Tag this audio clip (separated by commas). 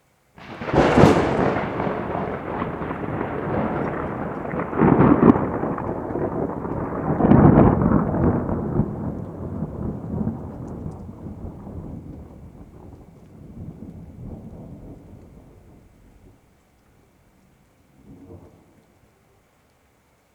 Thunder, Thunderstorm